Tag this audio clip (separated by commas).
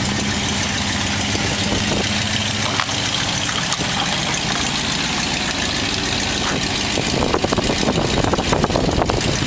Truck, Vehicle